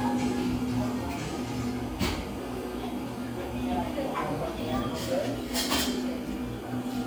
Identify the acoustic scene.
cafe